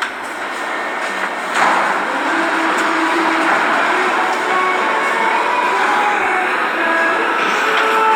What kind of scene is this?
subway station